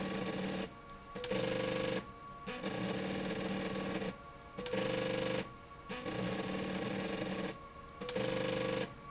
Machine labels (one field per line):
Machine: slide rail